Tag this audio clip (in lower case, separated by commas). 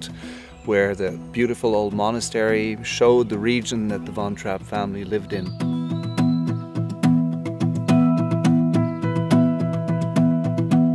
music, tender music, speech